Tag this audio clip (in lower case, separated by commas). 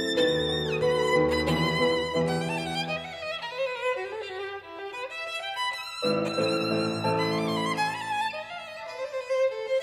violin, music, musical instrument